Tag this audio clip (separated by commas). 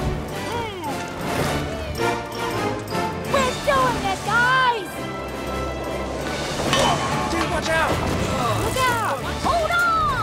Vehicle, Speech, Music, Bicycle